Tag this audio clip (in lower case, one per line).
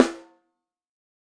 music
musical instrument
snare drum
percussion
drum